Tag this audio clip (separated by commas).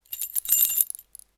Keys jangling, Domestic sounds